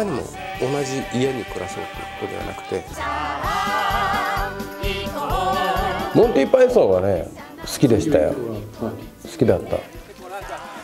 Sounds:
Music, Speech

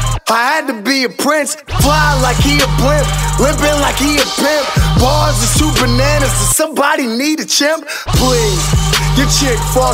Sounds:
Music

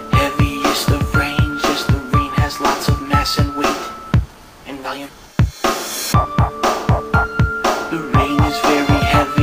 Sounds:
Music

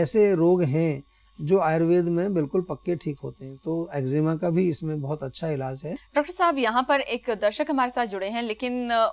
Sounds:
Speech

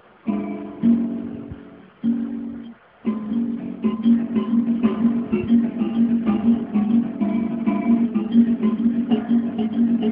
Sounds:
Musical instrument, Music, Guitar

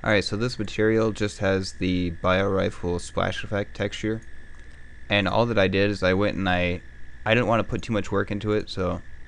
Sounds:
Speech

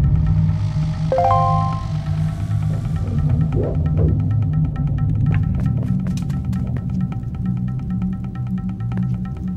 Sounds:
Music

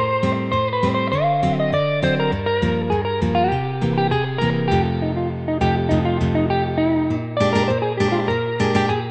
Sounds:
Music

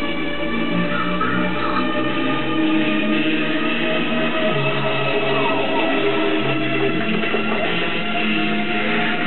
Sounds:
Music

